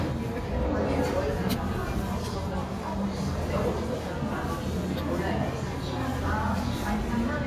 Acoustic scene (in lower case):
cafe